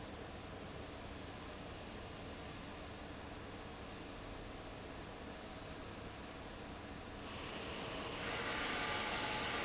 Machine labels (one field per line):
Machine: fan